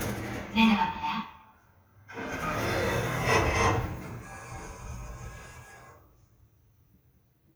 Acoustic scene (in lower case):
elevator